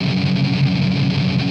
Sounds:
Guitar, Musical instrument, Plucked string instrument, Music, Strum

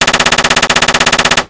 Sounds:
Gunshot, Explosion

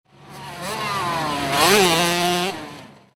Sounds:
Motorcycle, Vehicle, Motor vehicle (road)

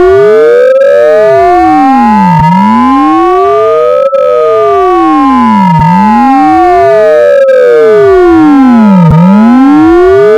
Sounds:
Siren, Alarm

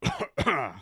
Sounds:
Respiratory sounds, Cough

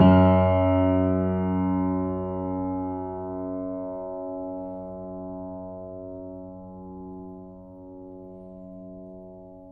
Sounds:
Keyboard (musical), Music, Piano, Musical instrument

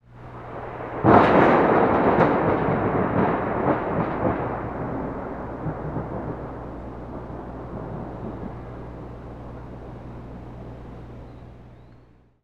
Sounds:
Thunder, Thunderstorm

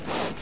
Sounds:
Animal, livestock

